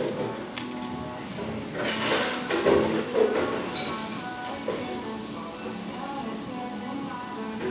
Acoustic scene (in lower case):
cafe